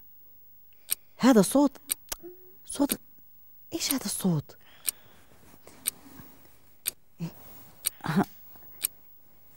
A person speaking as a clock ticks